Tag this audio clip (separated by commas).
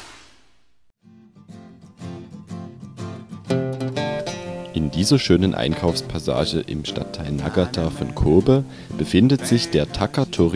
Speech, Music